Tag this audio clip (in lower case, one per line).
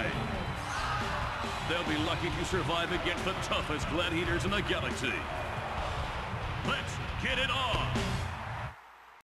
speech